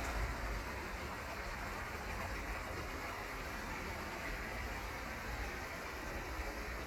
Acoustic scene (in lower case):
park